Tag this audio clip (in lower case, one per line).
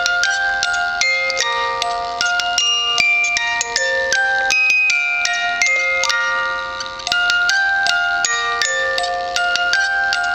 music